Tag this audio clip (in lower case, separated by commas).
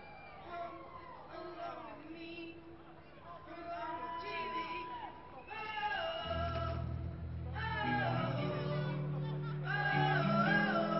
music, electric guitar, musical instrument